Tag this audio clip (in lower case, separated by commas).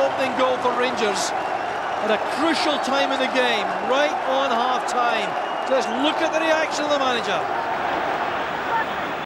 speech